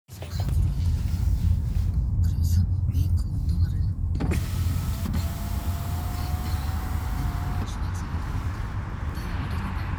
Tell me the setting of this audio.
car